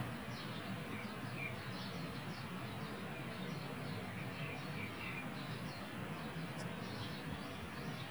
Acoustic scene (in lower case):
park